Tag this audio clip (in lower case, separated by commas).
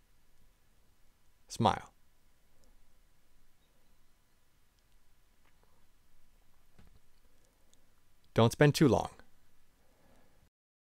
inside a small room, speech